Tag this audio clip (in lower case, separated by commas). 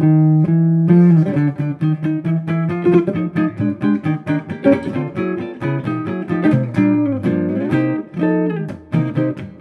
music, musical instrument, playing acoustic guitar, strum, guitar, acoustic guitar, plucked string instrument